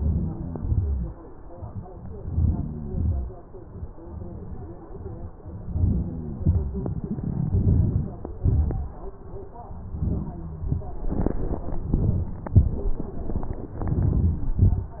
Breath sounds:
Inhalation: 0.00-0.52 s, 2.15-2.62 s, 5.70-6.19 s, 7.51-8.05 s, 13.94-14.44 s
Exhalation: 0.62-1.05 s, 2.86-3.31 s, 6.45-6.84 s, 8.42-8.90 s, 14.63-15.00 s

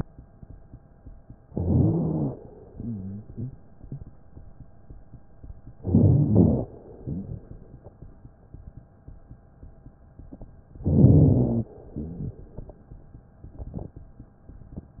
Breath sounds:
Inhalation: 1.50-2.34 s, 5.81-6.64 s, 10.85-11.69 s
Wheeze: 1.50-2.34 s, 2.69-3.53 s, 5.81-6.64 s, 7.02-7.42 s, 10.85-11.69 s, 11.99-12.39 s

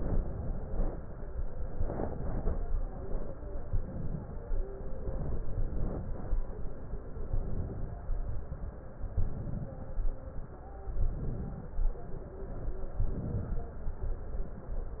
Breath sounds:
Inhalation: 0.21-0.99 s, 1.79-2.57 s, 3.66-4.32 s, 5.00-5.96 s, 7.36-7.98 s, 9.13-9.75 s, 10.96-11.74 s, 13.00-13.70 s

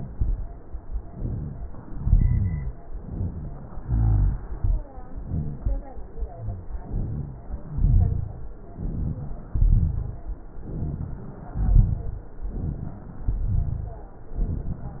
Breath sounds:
Inhalation: 1.10-1.75 s, 3.00-3.80 s, 6.87-7.46 s, 8.79-9.53 s, 10.70-11.50 s, 12.52-13.28 s, 14.40-15.00 s
Exhalation: 1.92-2.71 s, 3.83-4.57 s, 7.72-8.46 s, 9.58-10.32 s, 11.61-12.31 s, 13.32-14.08 s
Rhonchi: 1.92-2.71 s, 3.83-4.57 s, 7.72-8.46 s, 9.58-10.32 s, 11.61-12.31 s, 13.32-14.08 s

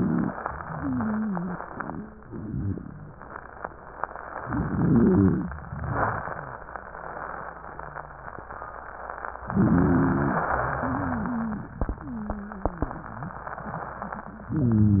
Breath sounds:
Inhalation: 4.48-5.52 s, 9.50-10.52 s, 14.52-15.00 s
Wheeze: 0.70-3.13 s, 4.48-5.52 s, 6.73-8.41 s, 9.50-10.52 s, 10.76-11.71 s, 12.01-12.95 s

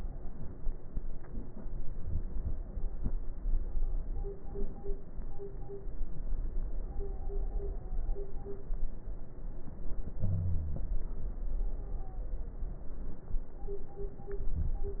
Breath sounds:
Wheeze: 10.15-10.90 s
Stridor: 6.80-8.64 s, 11.53-12.27 s

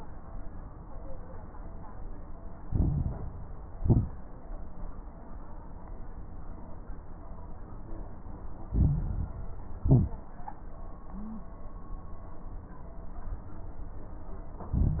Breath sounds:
Inhalation: 2.64-3.32 s, 8.72-9.40 s, 14.73-15.00 s
Exhalation: 3.74-4.42 s, 9.82-10.28 s
Crackles: 2.64-3.32 s, 3.74-4.42 s, 8.72-9.40 s, 9.82-10.28 s, 14.73-15.00 s

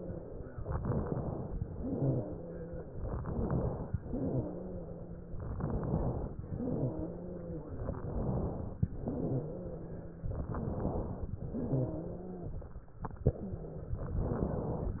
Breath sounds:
Inhalation: 0.72-1.50 s, 3.11-3.89 s, 5.48-6.36 s, 7.97-8.84 s, 10.42-11.29 s
Exhalation: 1.69-2.90 s, 4.12-5.39 s, 6.53-7.80 s, 9.11-10.38 s, 11.50-12.77 s
Wheeze: 1.69-2.90 s, 4.12-5.39 s, 6.53-7.80 s, 9.11-10.38 s, 11.50-12.77 s

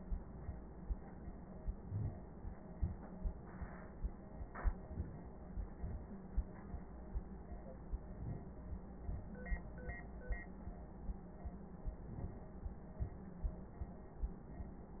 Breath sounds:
Inhalation: 1.71-2.28 s, 4.80-5.35 s, 8.01-8.58 s, 11.88-12.56 s

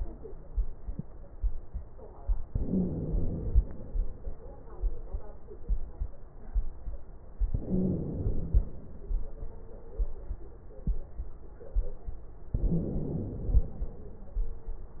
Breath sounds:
Inhalation: 2.45-3.85 s, 7.49-8.83 s, 12.54-13.83 s
Wheeze: 2.45-3.13 s, 7.50-8.07 s, 12.54-13.17 s

